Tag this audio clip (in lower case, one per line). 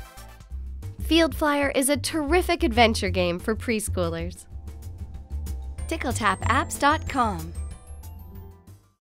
music
speech